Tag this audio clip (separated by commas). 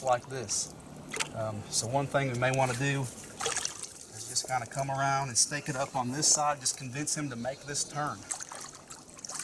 Water, outside, rural or natural, Speech